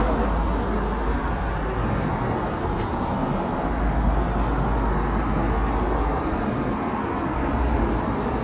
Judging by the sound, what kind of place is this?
residential area